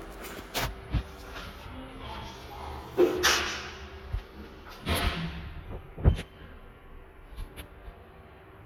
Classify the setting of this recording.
elevator